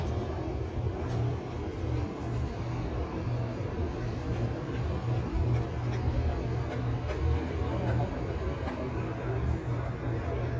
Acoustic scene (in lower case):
street